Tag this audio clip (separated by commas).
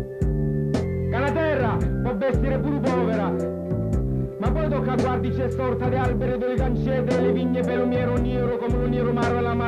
Speech, Music